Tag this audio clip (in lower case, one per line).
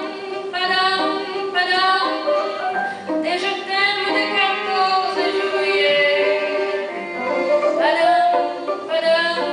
music
female singing
bowed string instrument
musical instrument
singing